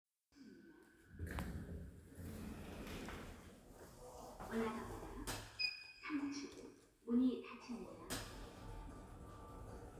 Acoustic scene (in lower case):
elevator